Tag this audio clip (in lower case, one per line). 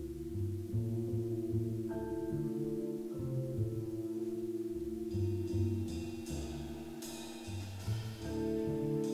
music